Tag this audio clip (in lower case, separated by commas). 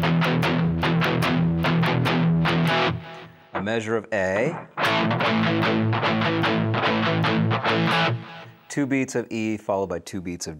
music, speech, musical instrument, guitar